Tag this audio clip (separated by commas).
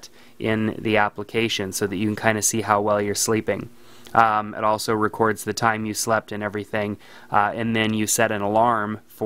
Speech